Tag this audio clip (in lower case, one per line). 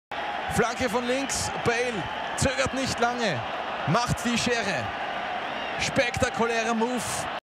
speech